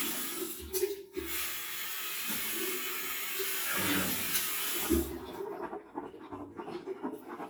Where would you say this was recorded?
in a restroom